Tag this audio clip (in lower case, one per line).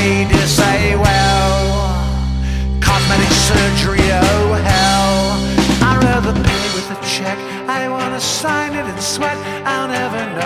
independent music